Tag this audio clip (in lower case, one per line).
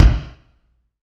percussion
musical instrument
bass drum
music
drum